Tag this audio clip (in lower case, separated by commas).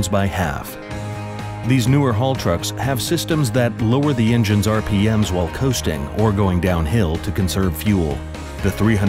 speech, music